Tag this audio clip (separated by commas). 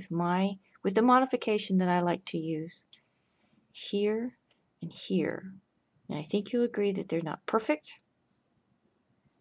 Speech, inside a small room